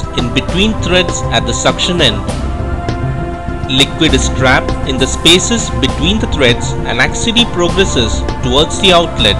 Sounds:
speech
music

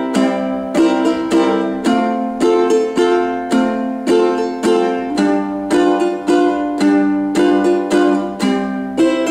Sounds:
guitar
ukulele
music
musical instrument
plucked string instrument

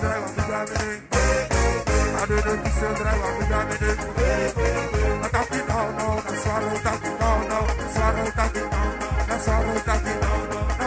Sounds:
music

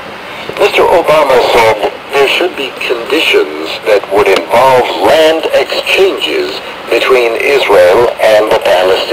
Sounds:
speech

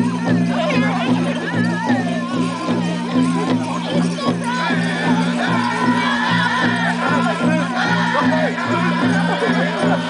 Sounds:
music
speech
country
bluegrass

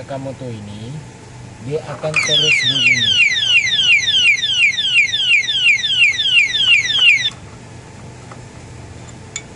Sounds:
alarm
speech

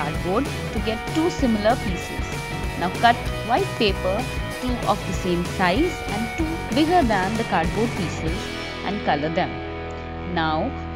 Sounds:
speech
music

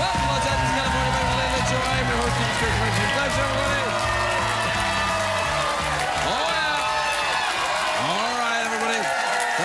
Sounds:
music
narration
speech

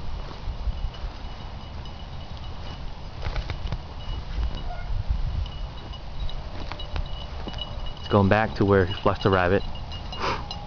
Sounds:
speech

